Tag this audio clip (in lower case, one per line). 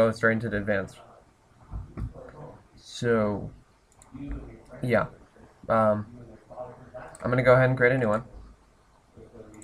speech